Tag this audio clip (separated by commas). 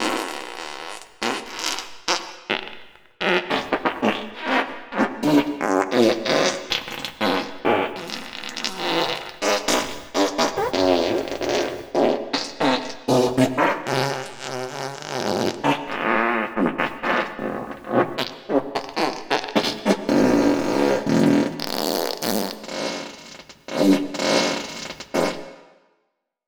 Fart